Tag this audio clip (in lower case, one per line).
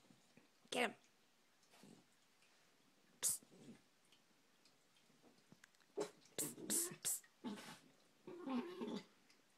hiss